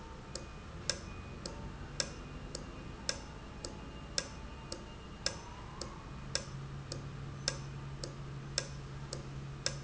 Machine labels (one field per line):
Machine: valve